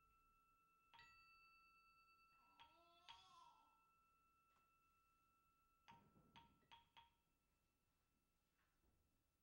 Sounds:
Musical instrument, Percussion, Music, Drum

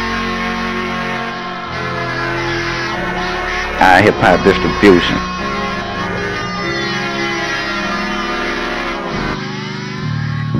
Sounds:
Speech, Music

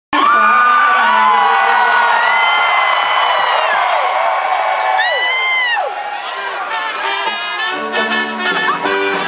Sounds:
Pop music, Music, Singing

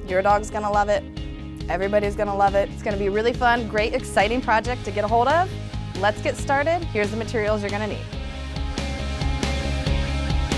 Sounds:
Music, Speech

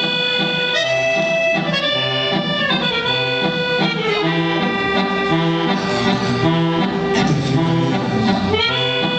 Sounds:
Music

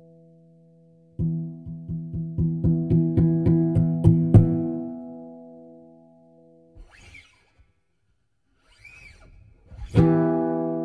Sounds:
inside a large room or hall, Music

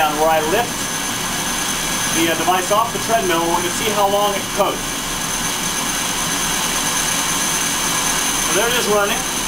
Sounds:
Speech

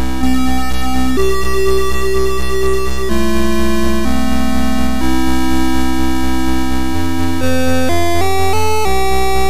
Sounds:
Theme music, Music

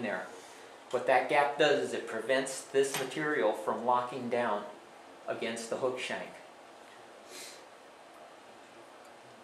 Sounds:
inside a small room, Speech

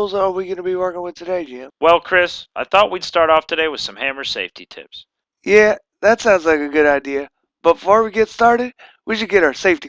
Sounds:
Speech

